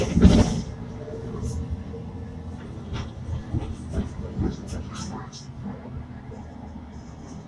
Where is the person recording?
on a bus